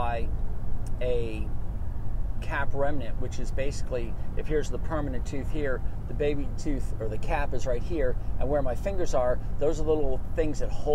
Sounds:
speech

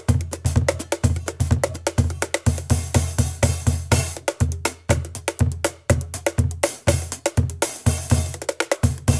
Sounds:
rimshot
percussion
drum
drum kit
bass drum

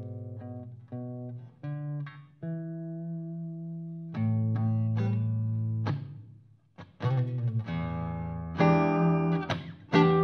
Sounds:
music
musical instrument
guitar
plucked string instrument

